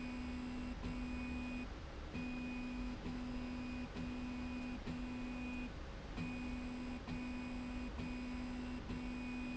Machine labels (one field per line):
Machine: slide rail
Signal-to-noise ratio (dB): 6 dB